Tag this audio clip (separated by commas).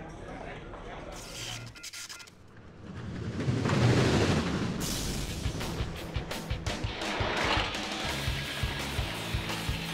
outside, urban or man-made, Vehicle, Speech, Music